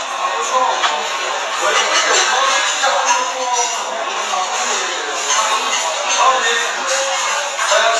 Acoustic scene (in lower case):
restaurant